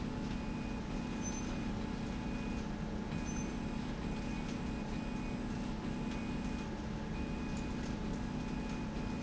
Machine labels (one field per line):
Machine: slide rail